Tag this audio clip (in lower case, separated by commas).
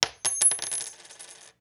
coin (dropping), domestic sounds